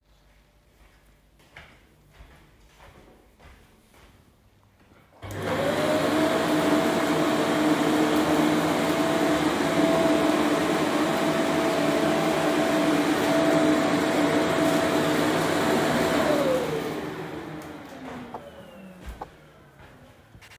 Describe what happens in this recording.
I walked across the room and turned on the vacuum cleaner. I used the vacuum cleaner for a few seconds, turned it off and walked to my chair